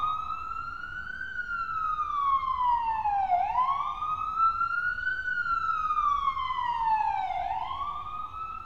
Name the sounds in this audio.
unidentified alert signal